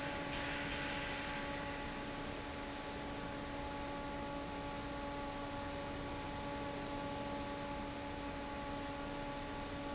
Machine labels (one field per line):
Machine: fan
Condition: normal